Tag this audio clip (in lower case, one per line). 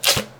domestic sounds
duct tape